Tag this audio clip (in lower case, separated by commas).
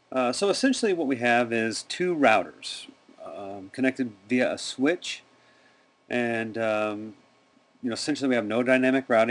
speech